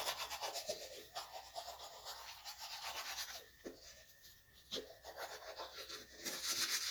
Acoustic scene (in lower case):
restroom